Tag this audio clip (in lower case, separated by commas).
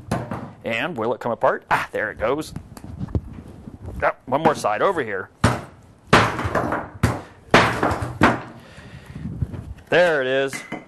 speech